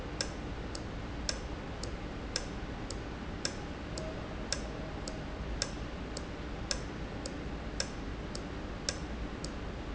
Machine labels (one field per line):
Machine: valve